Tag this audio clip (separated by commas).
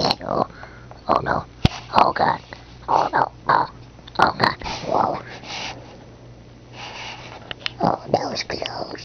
Speech